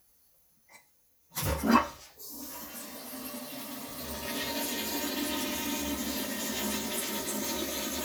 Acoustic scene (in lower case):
restroom